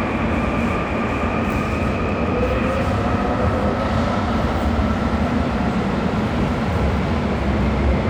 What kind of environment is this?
subway station